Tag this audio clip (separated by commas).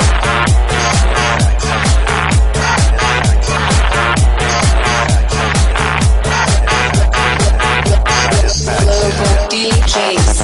Music